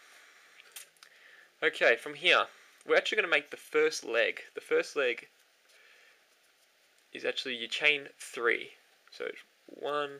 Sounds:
speech, inside a small room

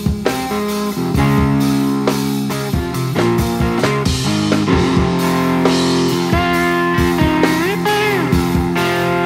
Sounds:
plucked string instrument, music, musical instrument, guitar

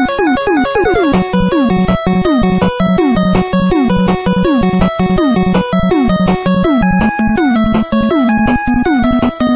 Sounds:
music

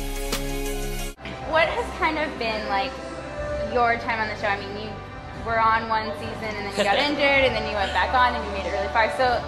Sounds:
music, speech

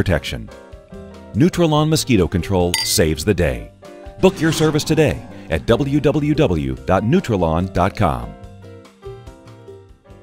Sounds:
speech, music

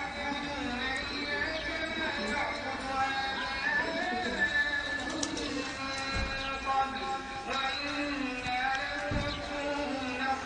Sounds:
bird, pigeon

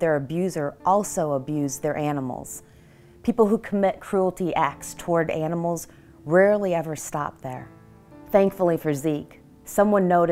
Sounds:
music, speech

